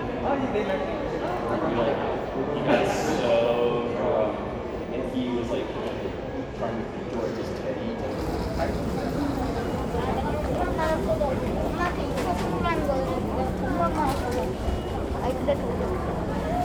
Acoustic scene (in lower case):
crowded indoor space